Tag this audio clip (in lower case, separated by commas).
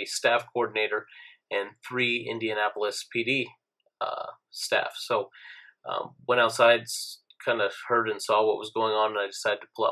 speech